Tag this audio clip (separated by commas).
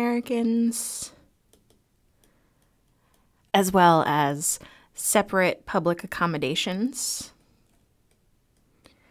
Speech